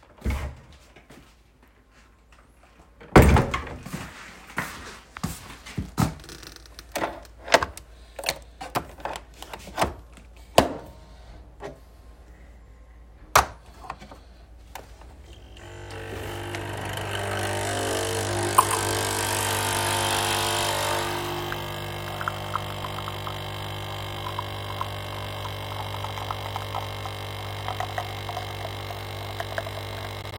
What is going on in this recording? I entered the kitchen and walked toward the coffee machine. I inserted the coffee capsule and turned the machine on. The machine began brewing and the cup was gradually filled with coffee. I remained near the machine.